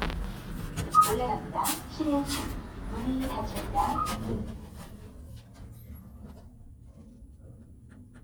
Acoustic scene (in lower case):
elevator